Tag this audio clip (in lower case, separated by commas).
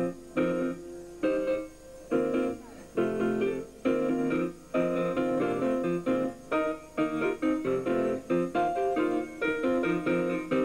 music